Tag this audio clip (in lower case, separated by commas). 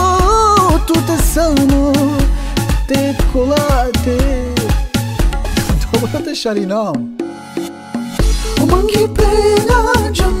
middle eastern music, music